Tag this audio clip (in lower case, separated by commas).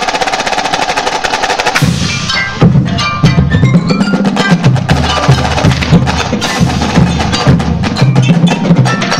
percussion, music